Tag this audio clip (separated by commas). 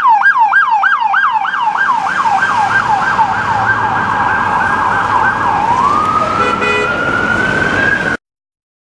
ambulance siren, Ambulance (siren)